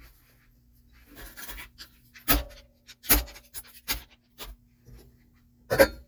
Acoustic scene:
kitchen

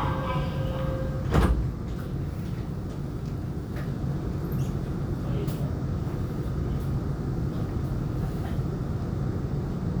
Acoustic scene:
subway train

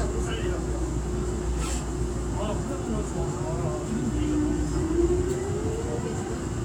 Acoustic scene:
subway train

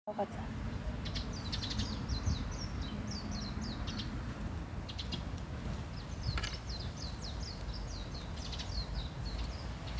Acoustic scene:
park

